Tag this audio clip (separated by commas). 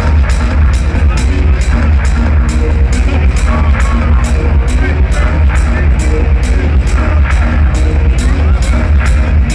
Techno, Speech, Music